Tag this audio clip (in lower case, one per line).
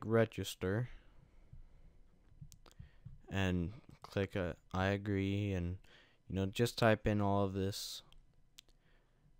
speech